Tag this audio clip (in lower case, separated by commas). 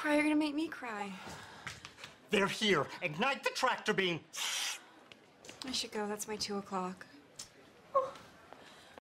speech